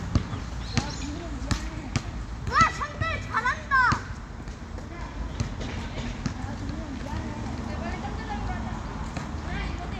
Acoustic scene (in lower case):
residential area